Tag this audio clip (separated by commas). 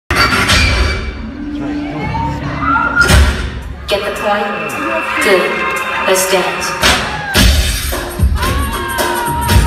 Singing, Music